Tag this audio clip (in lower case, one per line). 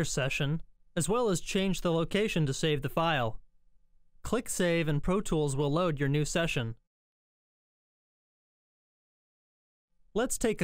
speech